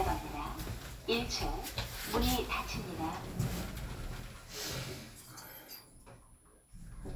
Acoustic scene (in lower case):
elevator